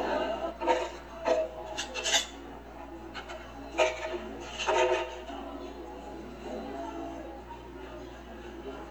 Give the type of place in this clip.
cafe